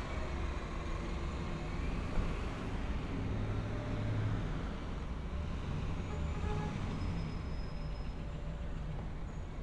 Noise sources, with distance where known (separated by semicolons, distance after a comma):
car horn, far